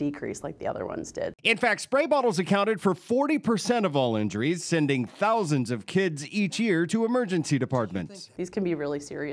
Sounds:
Speech

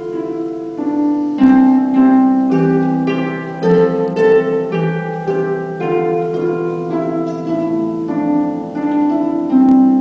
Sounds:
Music, playing harp, Harp

